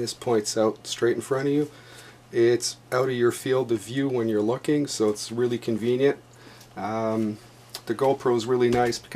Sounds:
speech

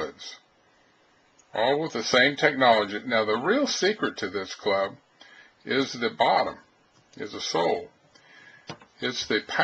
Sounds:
speech

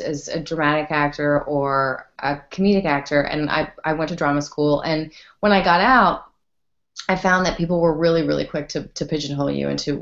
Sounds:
speech

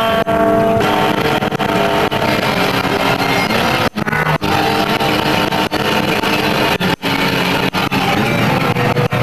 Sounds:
guitar, electric guitar, musical instrument, music, strum, playing electric guitar

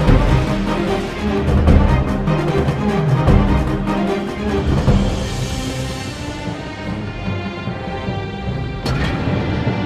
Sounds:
music

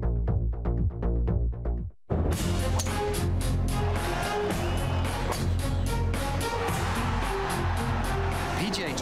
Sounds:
music, speech

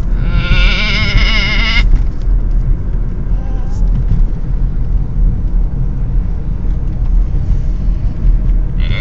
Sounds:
sheep, bleat

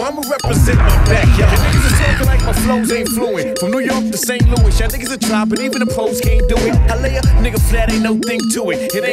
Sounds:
rhythm and blues, blues, music

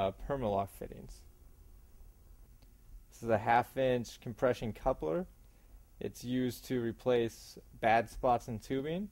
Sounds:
speech

